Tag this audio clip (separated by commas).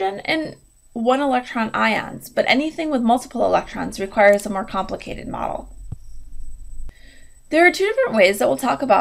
Speech